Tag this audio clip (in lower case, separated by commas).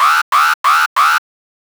alarm